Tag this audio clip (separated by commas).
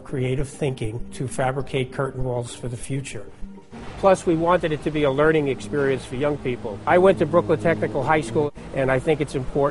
Music, Speech